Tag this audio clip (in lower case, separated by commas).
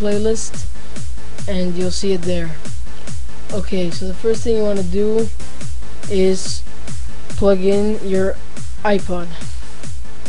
speech, music